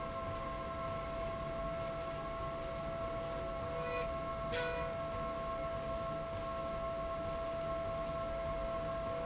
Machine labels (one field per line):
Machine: slide rail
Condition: normal